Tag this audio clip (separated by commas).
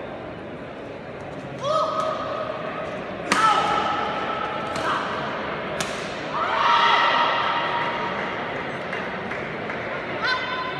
playing badminton